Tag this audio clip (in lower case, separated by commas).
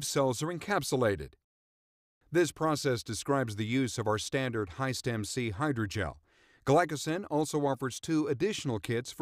speech